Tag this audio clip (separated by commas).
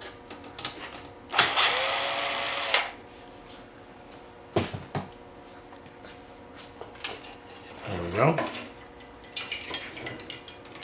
inside a small room, Speech